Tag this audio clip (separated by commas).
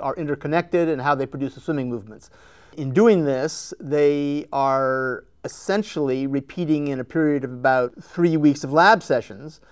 Speech